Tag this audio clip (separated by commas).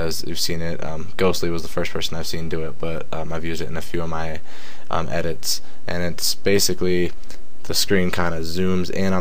Speech